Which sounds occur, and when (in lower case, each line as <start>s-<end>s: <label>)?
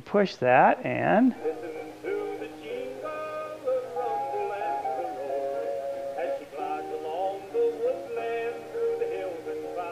0.0s-9.9s: background noise
0.1s-1.3s: man speaking
1.3s-9.9s: male singing
1.3s-9.9s: music